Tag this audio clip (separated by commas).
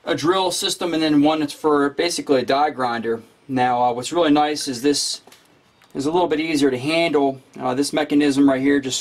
Speech